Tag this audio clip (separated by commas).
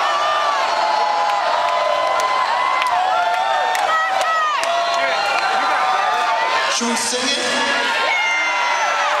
inside a large room or hall, Speech